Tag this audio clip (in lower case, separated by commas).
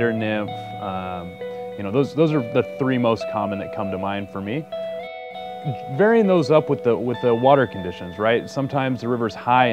speech, music